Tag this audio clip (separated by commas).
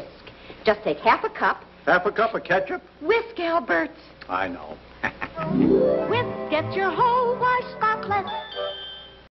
Music, Speech